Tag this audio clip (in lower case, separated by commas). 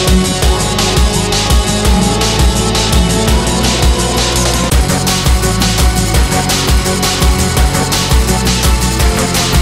music